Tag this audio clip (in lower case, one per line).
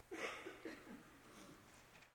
respiratory sounds
cough